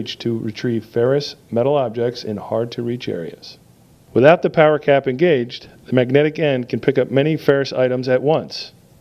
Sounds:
Speech

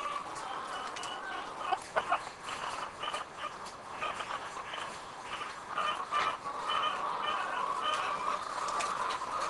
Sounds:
chicken crowing

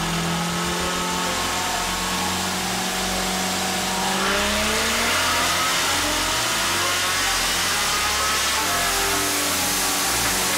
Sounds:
inside a large room or hall, Vehicle, Car, Music

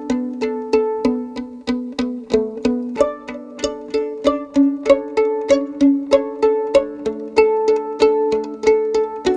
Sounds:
fiddle, Bowed string instrument, Pizzicato

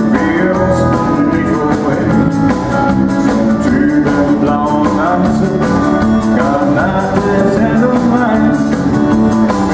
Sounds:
Music

